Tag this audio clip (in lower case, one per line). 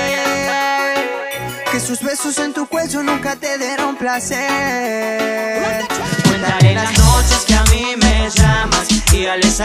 music
soundtrack music